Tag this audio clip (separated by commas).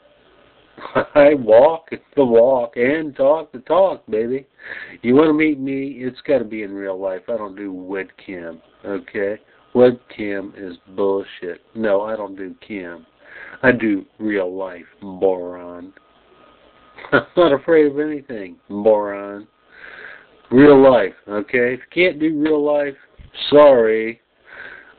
Speech, Male speech, Human voice